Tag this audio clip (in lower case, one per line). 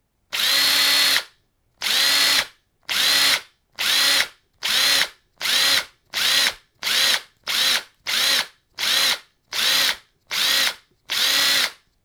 tools